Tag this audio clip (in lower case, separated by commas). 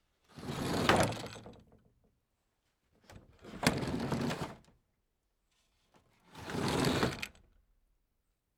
wood, door, sliding door, domestic sounds